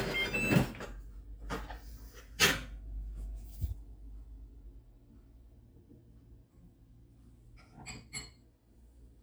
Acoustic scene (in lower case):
kitchen